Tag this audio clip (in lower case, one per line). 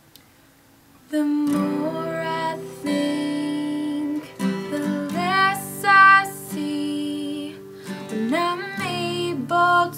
music
female singing